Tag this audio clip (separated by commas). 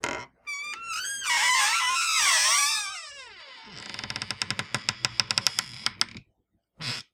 Door, Domestic sounds, Squeak